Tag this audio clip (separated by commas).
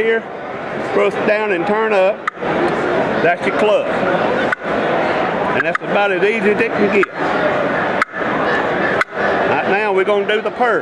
Speech